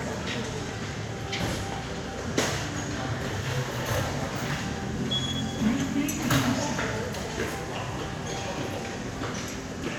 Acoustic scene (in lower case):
subway station